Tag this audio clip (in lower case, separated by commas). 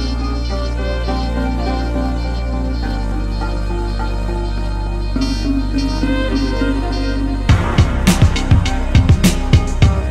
music